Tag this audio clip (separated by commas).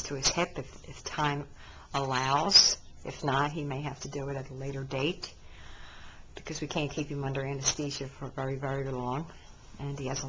Speech